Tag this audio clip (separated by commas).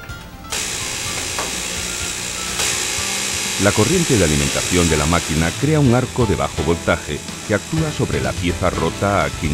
Music, Speech